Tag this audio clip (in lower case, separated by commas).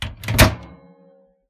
microwave oven, home sounds